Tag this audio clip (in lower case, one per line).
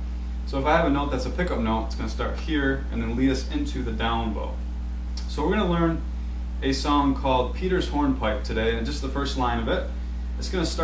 speech